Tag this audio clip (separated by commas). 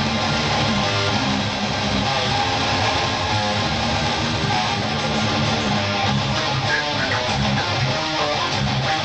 Music